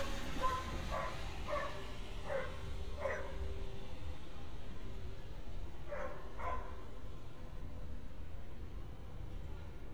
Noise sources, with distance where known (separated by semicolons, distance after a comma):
dog barking or whining, near